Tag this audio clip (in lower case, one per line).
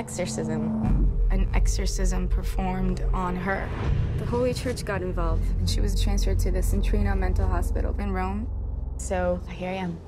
speech
music